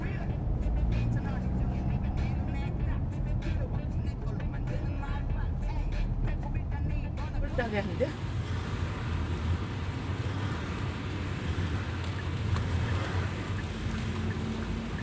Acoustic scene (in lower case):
car